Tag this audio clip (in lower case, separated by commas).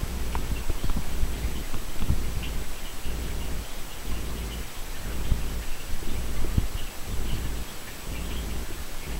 animal